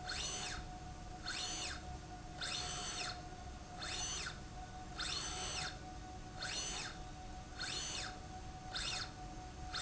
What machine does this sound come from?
slide rail